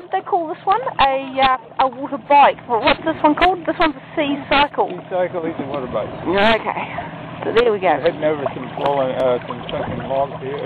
Woman and man speaking over the sound of bubbling water